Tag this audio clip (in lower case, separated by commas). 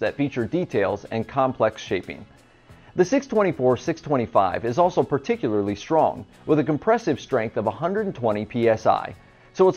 music, speech